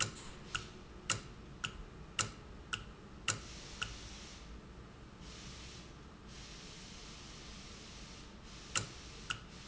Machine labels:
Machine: valve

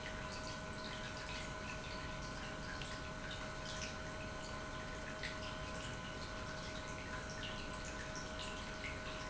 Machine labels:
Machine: pump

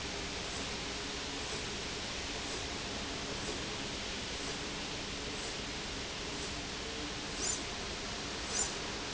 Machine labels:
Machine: slide rail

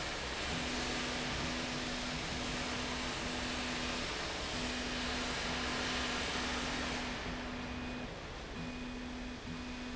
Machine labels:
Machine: slide rail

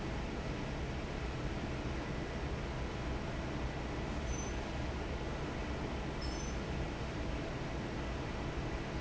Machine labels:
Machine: fan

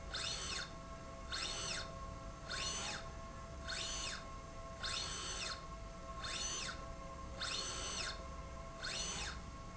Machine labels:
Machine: slide rail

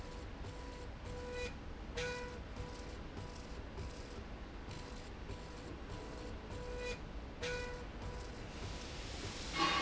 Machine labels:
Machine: slide rail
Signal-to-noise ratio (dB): 0 dB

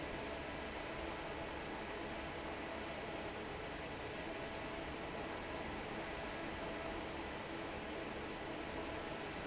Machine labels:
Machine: fan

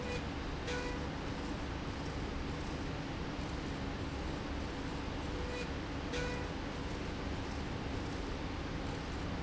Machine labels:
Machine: slide rail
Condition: normal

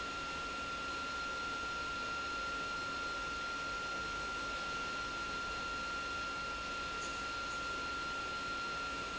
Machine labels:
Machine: pump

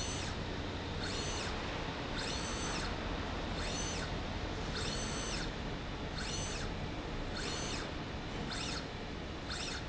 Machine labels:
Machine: slide rail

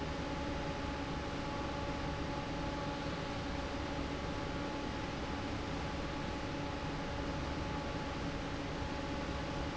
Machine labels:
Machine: fan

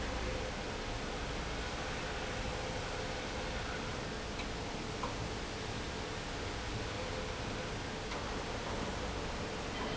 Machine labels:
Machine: pump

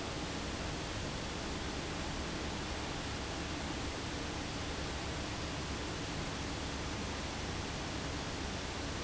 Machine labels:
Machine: fan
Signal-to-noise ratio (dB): -6 dB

